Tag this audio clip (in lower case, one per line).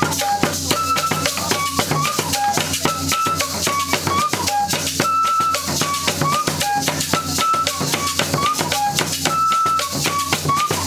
music
outside, rural or natural